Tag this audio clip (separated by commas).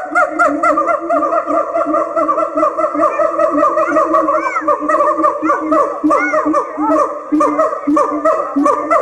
gibbon howling